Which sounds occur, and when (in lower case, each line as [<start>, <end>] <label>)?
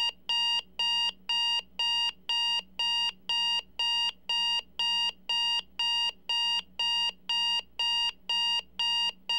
[0.00, 0.13] beep
[0.00, 9.35] background noise
[0.28, 0.63] beep
[0.80, 1.12] beep
[1.30, 1.62] beep
[1.79, 2.13] beep
[2.29, 2.64] beep
[2.80, 3.12] beep
[3.30, 3.65] beep
[3.80, 4.15] beep
[4.30, 4.64] beep
[4.80, 5.15] beep
[5.29, 5.65] beep
[5.81, 6.15] beep
[6.32, 6.66] beep
[6.82, 7.14] beep
[7.31, 7.67] beep
[7.80, 8.16] beep
[8.30, 8.66] beep
[8.81, 9.17] beep
[9.30, 9.35] beep